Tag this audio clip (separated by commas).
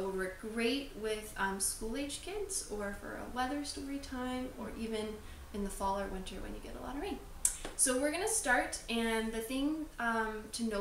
Speech